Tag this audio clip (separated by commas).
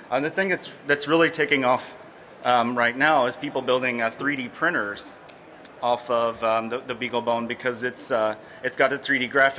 Speech